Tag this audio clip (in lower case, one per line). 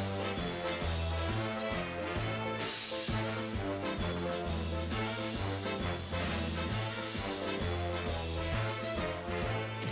music